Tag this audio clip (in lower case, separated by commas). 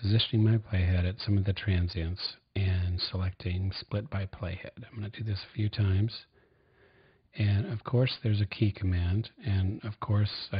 speech